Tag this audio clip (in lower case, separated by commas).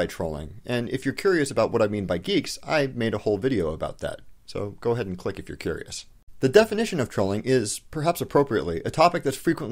speech